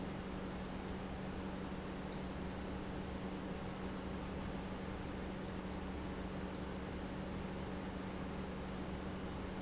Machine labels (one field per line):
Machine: pump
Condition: normal